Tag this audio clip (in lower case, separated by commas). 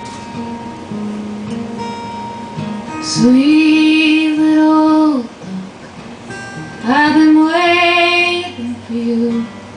music